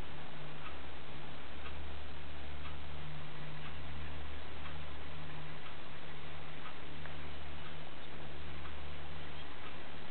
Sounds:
bird

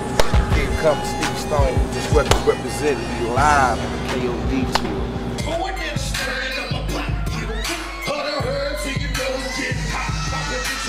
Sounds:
music

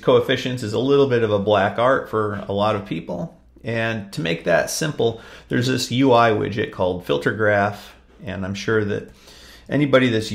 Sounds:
speech

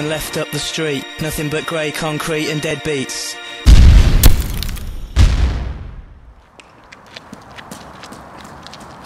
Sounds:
speech
music
explosion

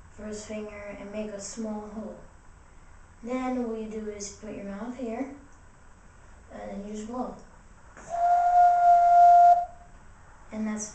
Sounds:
woodwind instrument

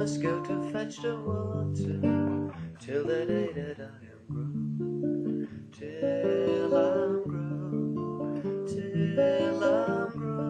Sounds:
acoustic guitar
music
musical instrument
guitar

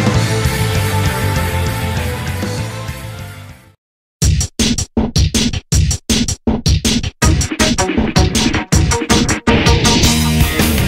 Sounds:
drum and bass

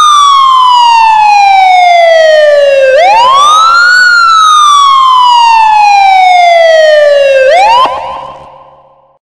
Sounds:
emergency vehicle
siren
police car (siren)

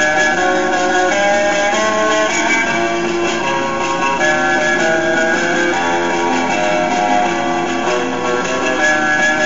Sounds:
music

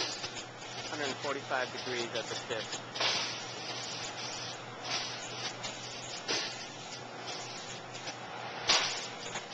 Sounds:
speech

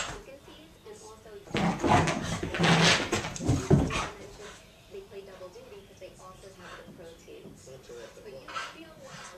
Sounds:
speech

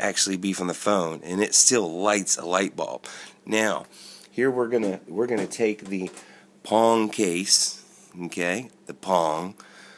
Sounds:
speech

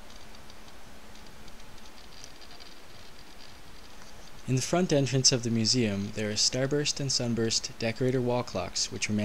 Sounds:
speech

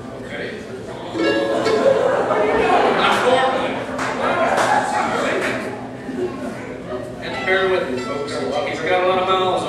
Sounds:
speech
music

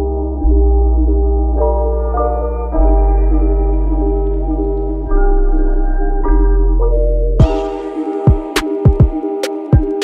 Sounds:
music

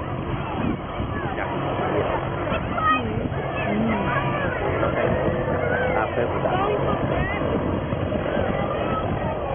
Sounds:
speech
outside, rural or natural
hubbub

